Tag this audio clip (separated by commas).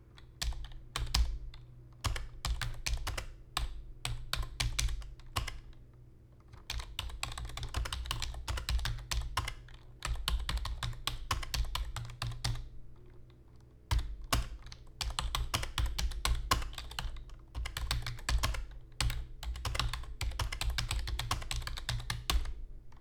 Domestic sounds, Computer keyboard, Typing